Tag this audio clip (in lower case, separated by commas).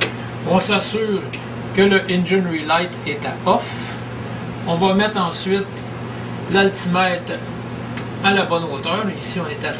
speech